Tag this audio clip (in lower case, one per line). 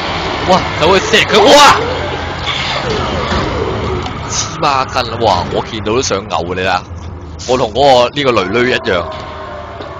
speech